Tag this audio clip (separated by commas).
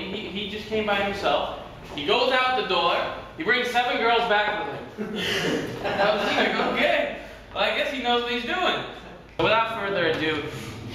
man speaking, Speech